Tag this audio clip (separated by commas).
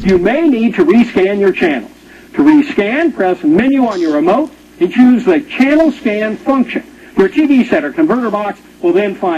Television, Speech